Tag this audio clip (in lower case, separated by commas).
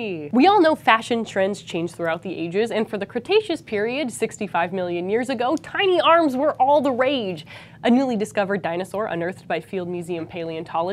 speech